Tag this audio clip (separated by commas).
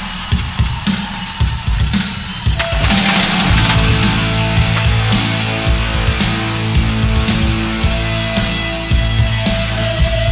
Music, Heavy metal